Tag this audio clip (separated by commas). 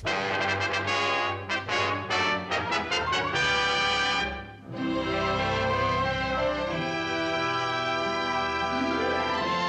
Music